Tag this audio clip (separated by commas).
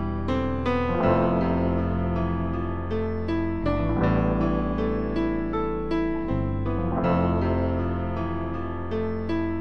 Music, Soundtrack music